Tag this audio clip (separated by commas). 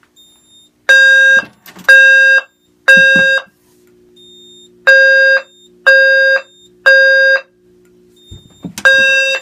Fire alarm